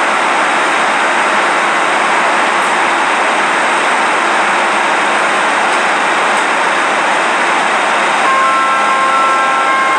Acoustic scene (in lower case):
subway station